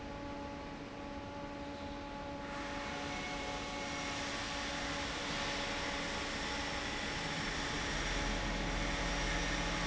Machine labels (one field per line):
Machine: fan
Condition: normal